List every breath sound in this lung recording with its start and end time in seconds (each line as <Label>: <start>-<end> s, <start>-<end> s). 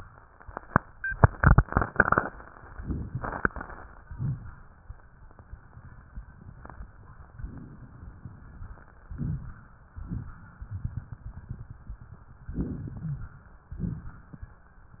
Inhalation: 4.00-4.92 s, 8.99-9.91 s, 12.48-13.40 s
Exhalation: 9.90-10.66 s, 13.66-14.57 s